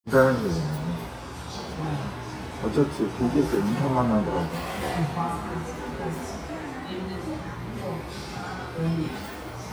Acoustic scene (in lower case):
restaurant